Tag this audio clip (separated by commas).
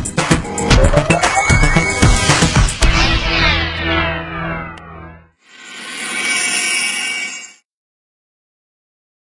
Music